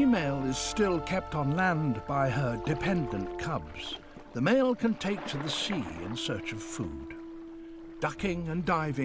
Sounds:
Speech, Music

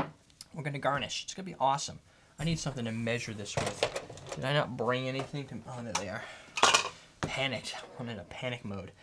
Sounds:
silverware, dishes, pots and pans

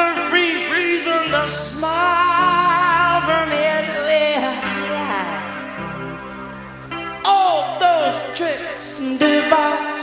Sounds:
Music

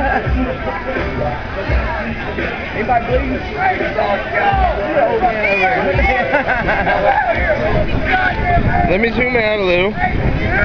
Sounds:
Speech, Music

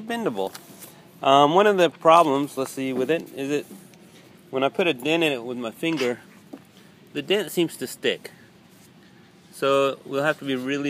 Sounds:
Speech

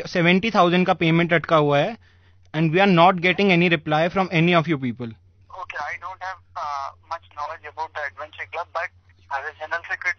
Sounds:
Radio, Speech

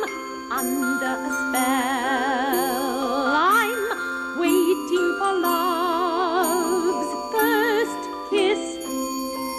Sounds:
Music

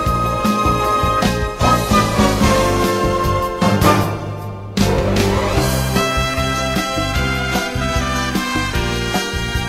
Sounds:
Music, Background music

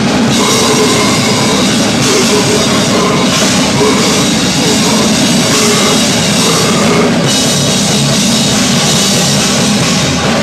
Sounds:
Music

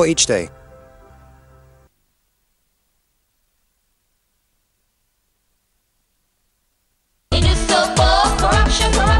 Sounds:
Music, Speech

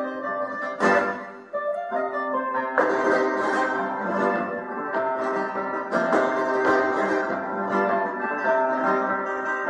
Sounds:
Musical instrument, Acoustic guitar, Music, Flamenco, Guitar

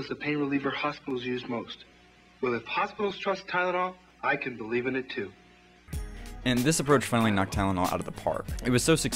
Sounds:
Speech

